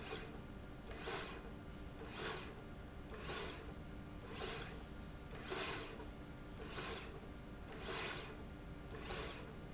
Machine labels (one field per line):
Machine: slide rail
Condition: normal